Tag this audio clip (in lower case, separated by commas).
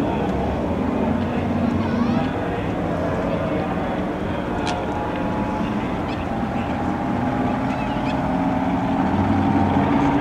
vehicle, speech, outside, urban or man-made, boat, speedboat